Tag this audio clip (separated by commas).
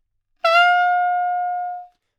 Music, woodwind instrument, Musical instrument